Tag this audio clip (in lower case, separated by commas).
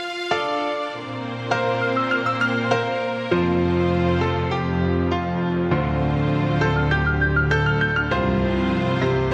music, theme music